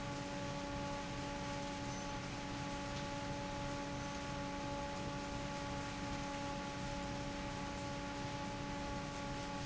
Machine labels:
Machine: fan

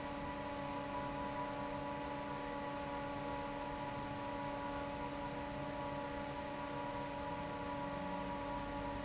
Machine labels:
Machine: fan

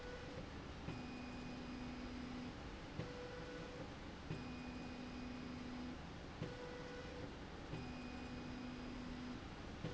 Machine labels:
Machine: slide rail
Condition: normal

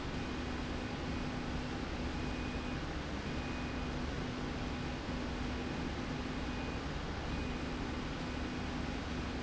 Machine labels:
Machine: slide rail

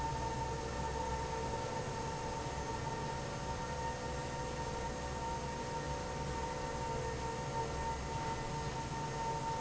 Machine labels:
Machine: fan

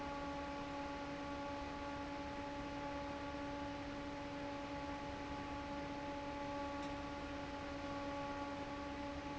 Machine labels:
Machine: fan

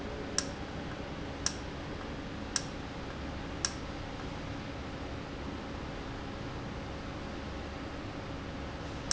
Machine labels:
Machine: valve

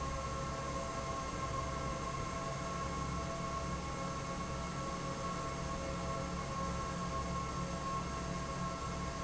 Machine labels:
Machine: fan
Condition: normal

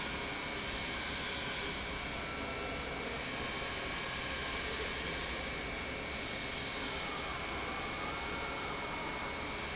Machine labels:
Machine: pump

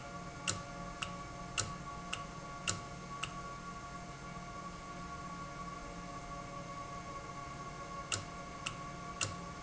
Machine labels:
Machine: valve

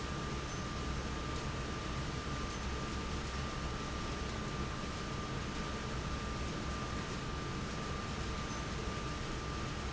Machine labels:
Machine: fan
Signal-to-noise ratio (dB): -6 dB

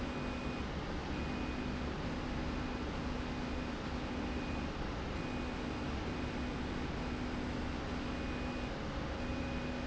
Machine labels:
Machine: slide rail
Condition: normal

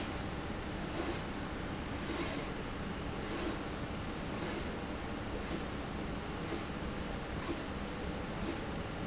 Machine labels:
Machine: slide rail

